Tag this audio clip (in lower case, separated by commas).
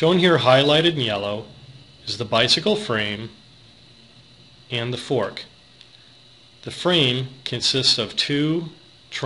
speech